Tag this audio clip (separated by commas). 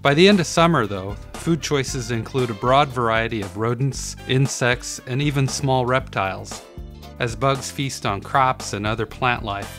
Speech, Music